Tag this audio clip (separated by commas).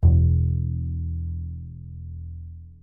Musical instrument, Music, Bowed string instrument